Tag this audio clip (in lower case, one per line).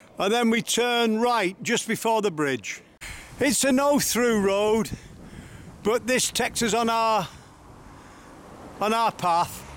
speech